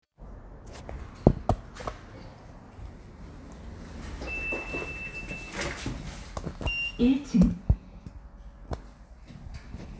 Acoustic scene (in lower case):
elevator